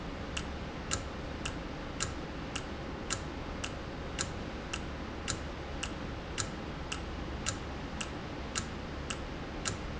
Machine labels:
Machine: valve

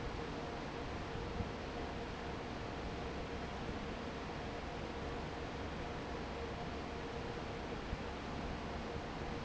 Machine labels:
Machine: fan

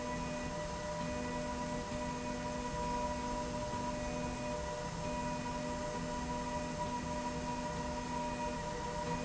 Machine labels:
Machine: slide rail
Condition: normal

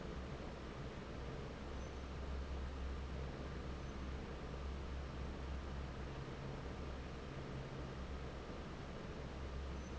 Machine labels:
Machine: fan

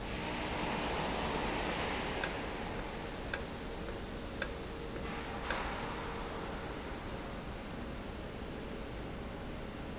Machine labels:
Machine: valve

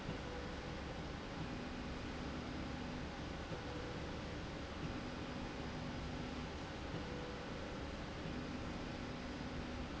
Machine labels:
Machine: slide rail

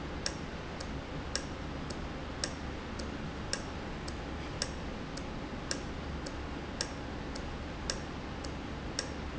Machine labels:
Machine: valve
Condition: normal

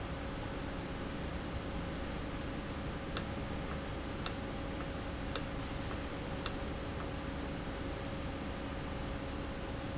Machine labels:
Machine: valve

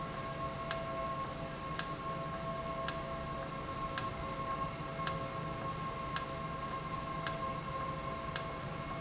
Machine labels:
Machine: valve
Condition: normal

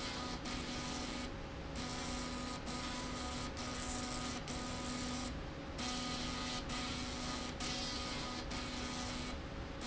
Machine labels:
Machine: slide rail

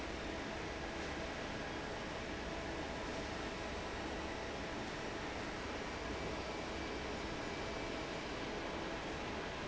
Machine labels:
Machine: fan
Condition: normal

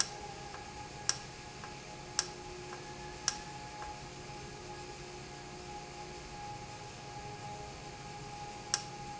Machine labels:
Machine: valve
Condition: normal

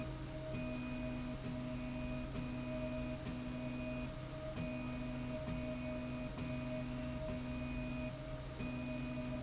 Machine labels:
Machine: slide rail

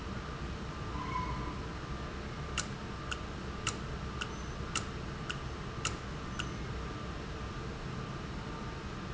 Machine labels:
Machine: valve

